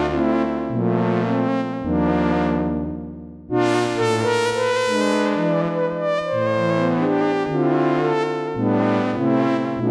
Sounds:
music

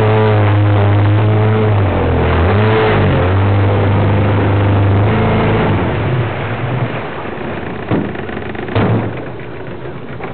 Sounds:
boat, outside, rural or natural, vehicle

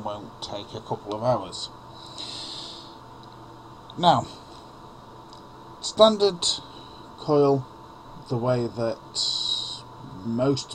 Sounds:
speech

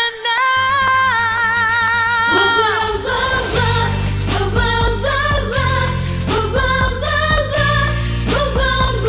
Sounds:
music, singing, music of asia

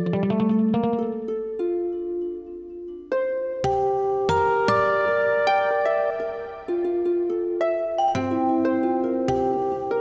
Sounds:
music, musical instrument

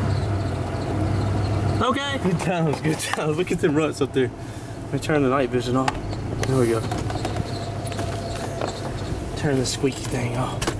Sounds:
vehicle, truck

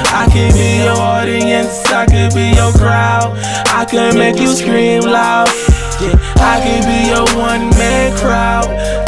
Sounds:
music

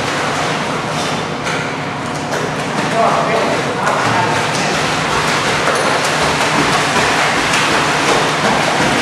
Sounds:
speech

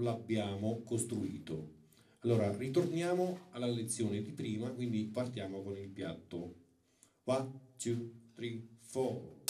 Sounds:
music, speech

